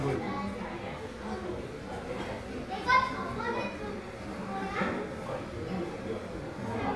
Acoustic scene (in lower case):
crowded indoor space